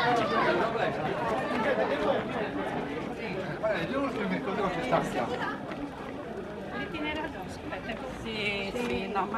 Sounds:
Run, Speech, outside, urban or man-made

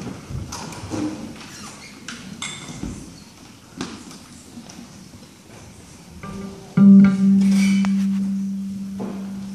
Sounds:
Music

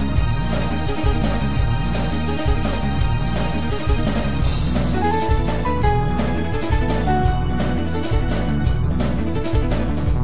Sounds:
Music, Video game music, Soundtrack music

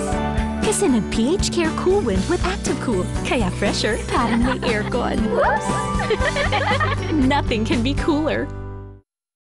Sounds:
Speech, Music

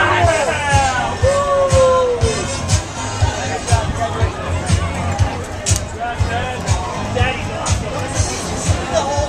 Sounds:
Speech, Music, outside, urban or man-made, Hubbub

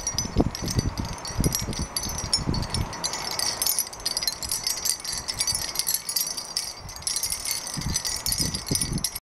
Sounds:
Rustling leaves, Music

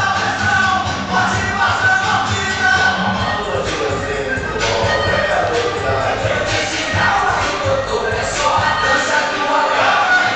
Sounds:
Music

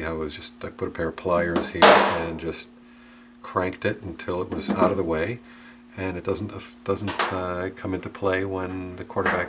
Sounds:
Speech, inside a small room

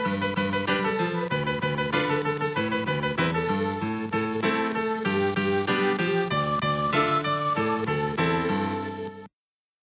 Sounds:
Music, Blues

